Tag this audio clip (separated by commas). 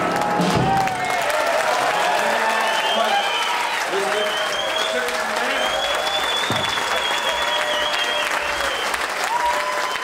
Applause, Speech, Music, Musical instrument, Trombone, Brass instrument